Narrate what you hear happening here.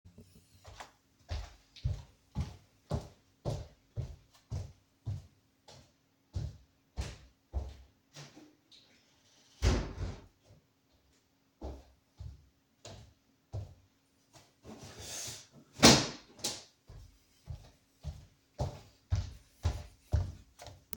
I walk to the other side of the living room and close a window. Then I grab a pillow and throw it against the floor. Then I walk back to the recording device.